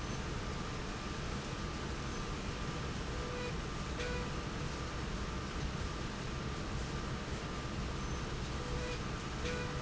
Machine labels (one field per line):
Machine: slide rail